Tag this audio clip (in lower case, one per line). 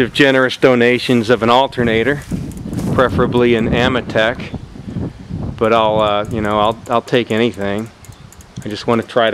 bicycle
vehicle
speech